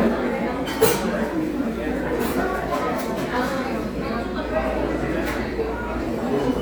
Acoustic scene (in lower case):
cafe